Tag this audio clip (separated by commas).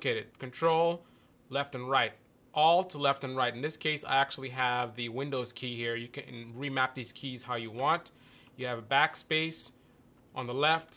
Speech